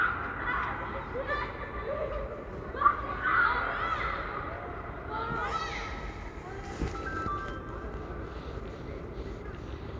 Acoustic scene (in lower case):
residential area